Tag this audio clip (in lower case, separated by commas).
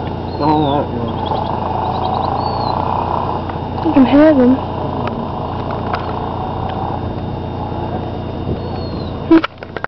speech, outside, rural or natural, animal